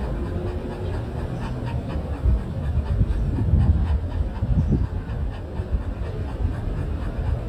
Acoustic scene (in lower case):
residential area